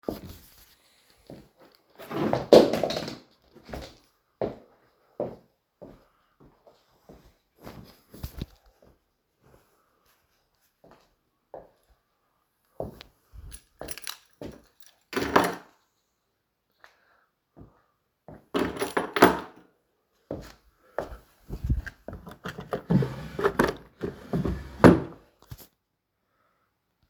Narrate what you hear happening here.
I walked to a drawer, opened it, searched briefly, closed it, and jingled my keychain.